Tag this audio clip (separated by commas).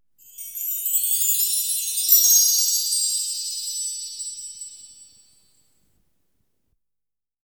Bell, Chime